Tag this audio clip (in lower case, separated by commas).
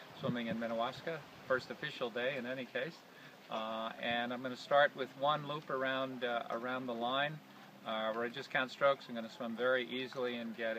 speech